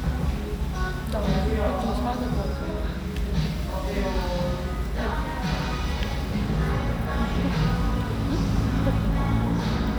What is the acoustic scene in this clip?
restaurant